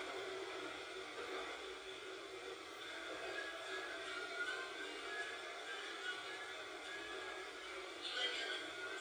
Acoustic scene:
subway train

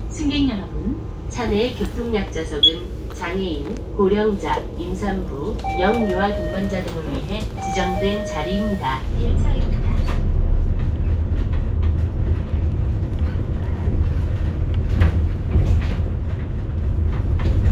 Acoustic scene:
bus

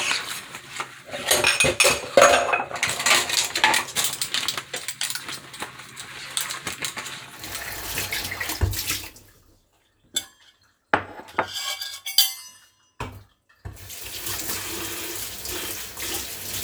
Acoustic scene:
kitchen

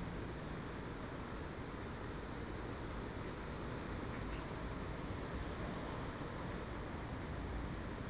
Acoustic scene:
residential area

